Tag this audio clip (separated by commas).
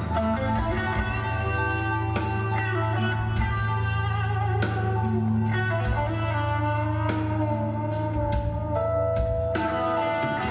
Music